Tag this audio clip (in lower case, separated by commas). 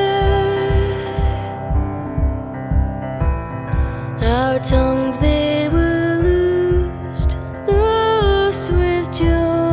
music